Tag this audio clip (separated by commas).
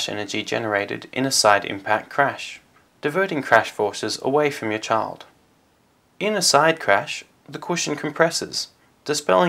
Speech